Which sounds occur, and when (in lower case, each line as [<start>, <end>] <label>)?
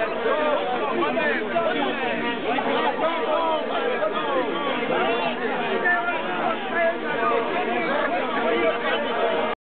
[0.00, 9.54] background noise
[0.00, 9.54] hubbub
[0.00, 9.54] male speech